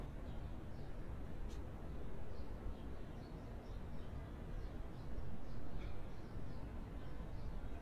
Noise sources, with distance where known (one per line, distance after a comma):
car horn, far